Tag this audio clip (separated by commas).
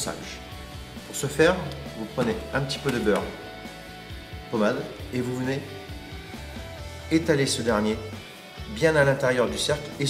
Speech, Music